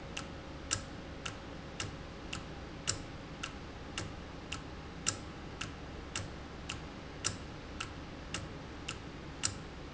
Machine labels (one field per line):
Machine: valve